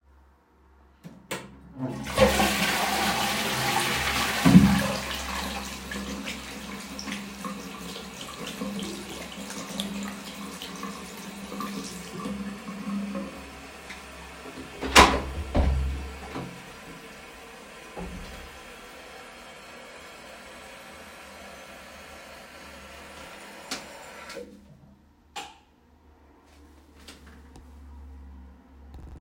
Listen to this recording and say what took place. I flushed the toilet, then turned on the tap to wash my hands at the same time. Afterward, I opened the bathroom door and turned off the light as I exited.